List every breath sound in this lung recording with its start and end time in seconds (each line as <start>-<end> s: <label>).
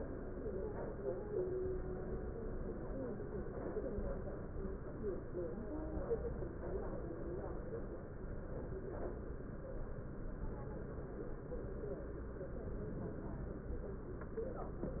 12.63-13.43 s: inhalation